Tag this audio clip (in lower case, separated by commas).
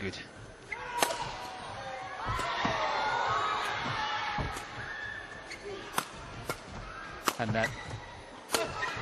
playing badminton